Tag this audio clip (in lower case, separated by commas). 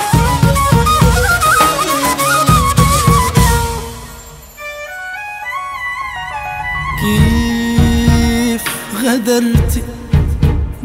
flute, woodwind instrument